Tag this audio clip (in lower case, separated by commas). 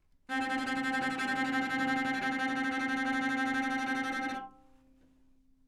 music, musical instrument, bowed string instrument